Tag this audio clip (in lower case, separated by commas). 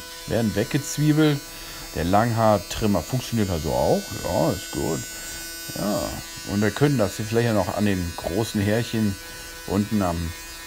electric razor shaving